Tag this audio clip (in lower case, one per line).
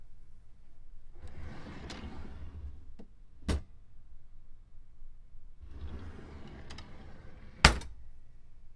home sounds
drawer open or close